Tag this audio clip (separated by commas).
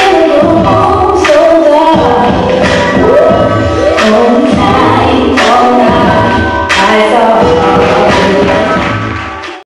Music